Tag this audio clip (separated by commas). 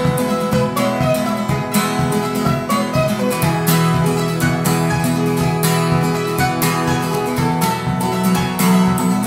Mandolin, Music